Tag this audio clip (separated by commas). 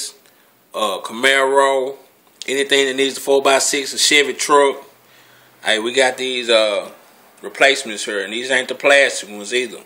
Speech